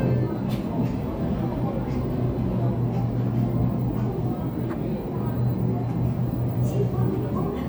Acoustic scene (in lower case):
crowded indoor space